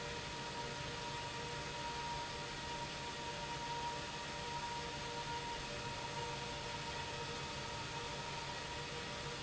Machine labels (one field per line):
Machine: pump